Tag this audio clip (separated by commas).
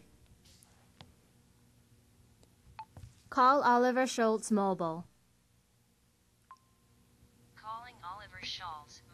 Speech synthesizer, Speech